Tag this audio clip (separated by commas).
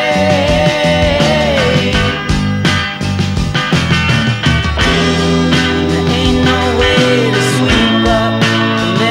Psychedelic rock